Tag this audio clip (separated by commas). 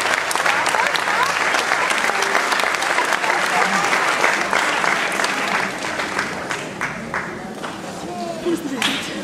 people clapping, Applause, Speech